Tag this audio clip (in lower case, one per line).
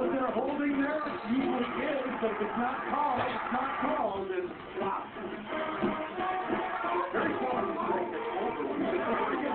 music
speech